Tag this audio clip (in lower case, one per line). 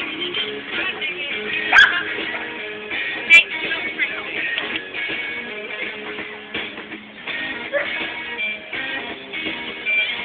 speech
music
bow-wow
animal
dog
domestic animals